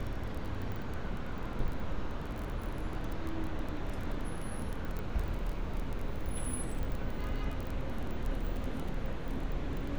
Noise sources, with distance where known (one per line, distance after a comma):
engine of unclear size, near
car horn